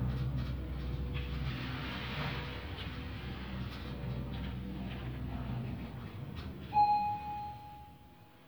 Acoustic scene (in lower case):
elevator